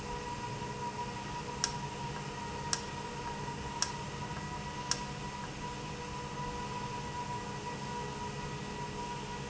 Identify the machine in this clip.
valve